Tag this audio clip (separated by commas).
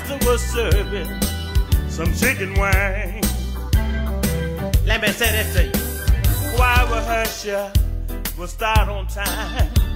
Music